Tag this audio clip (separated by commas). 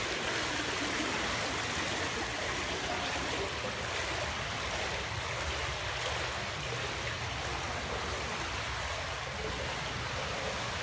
swimming